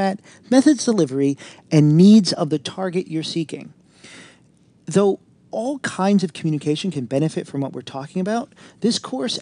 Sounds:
Speech

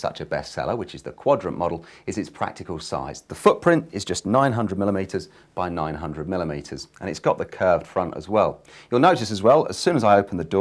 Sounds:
Speech

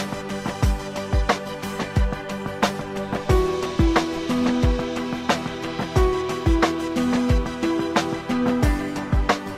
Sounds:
Music

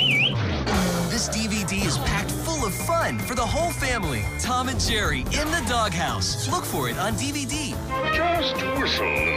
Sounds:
Music, Speech

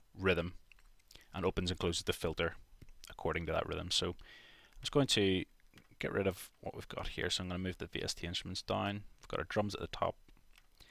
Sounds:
Speech

